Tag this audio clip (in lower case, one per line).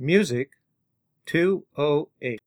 speech
human voice